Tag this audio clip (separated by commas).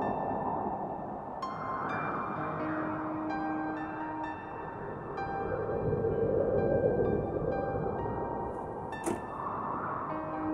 Music